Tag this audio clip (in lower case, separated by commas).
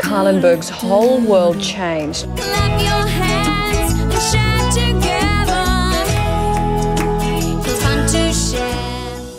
music for children